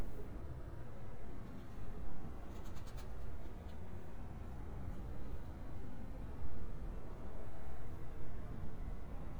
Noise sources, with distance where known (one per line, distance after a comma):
background noise